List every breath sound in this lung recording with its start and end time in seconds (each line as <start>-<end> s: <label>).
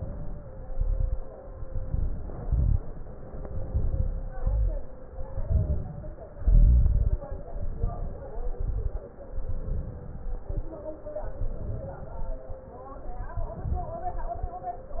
0.00-0.70 s: inhalation
0.70-1.16 s: exhalation
0.72-1.14 s: crackles
1.50-2.39 s: crackles
1.52-2.39 s: inhalation
2.45-2.79 s: crackles
2.45-2.81 s: exhalation
3.31-4.29 s: inhalation
3.36-4.29 s: crackles
4.35-4.94 s: crackles
4.37-4.96 s: exhalation
5.19-6.17 s: inhalation
5.28-6.13 s: crackles
6.37-7.16 s: crackles
6.38-7.18 s: exhalation
7.60-8.40 s: inhalation
7.60-8.40 s: crackles
8.55-9.08 s: exhalation
8.55-9.08 s: crackles
9.35-10.28 s: inhalation
10.39-10.85 s: exhalation
10.41-10.85 s: crackles
11.40-12.25 s: crackles
11.40-12.33 s: inhalation
12.35-12.81 s: exhalation
13.36-14.29 s: inhalation
13.38-14.06 s: crackles
14.29-14.74 s: exhalation
14.29-14.74 s: crackles